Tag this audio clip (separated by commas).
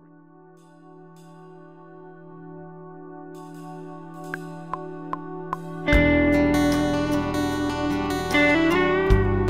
Guitar, Acoustic guitar, Strum, Plucked string instrument, Musical instrument, Music